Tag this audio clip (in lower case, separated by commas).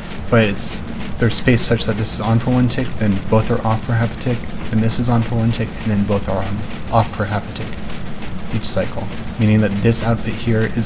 speech